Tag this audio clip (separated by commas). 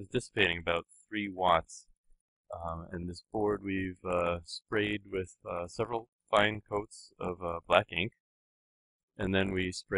Speech